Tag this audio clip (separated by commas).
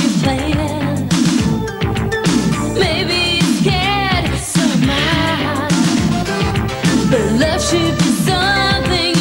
Pop music, Music